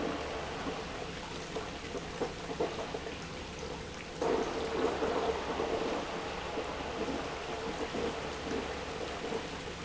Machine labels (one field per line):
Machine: pump